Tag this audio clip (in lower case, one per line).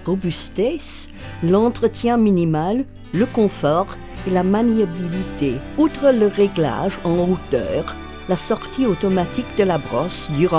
music
speech